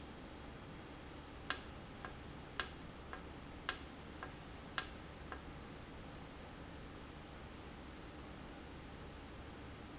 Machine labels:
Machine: valve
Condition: normal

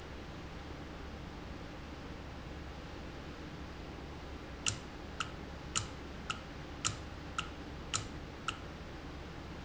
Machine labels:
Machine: valve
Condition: normal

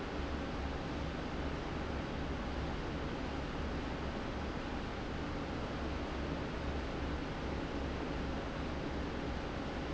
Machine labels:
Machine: fan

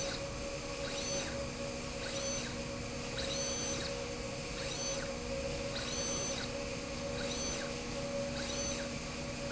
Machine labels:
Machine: slide rail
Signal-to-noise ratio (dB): -6 dB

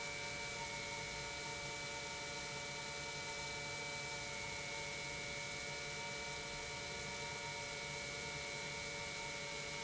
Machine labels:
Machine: pump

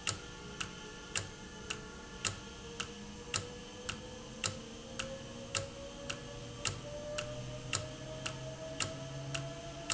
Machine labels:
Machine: valve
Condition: normal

